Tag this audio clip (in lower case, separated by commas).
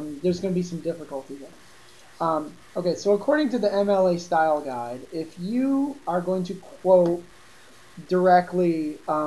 speech